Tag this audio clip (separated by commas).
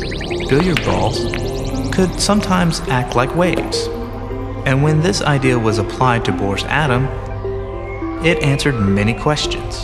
Speech, Music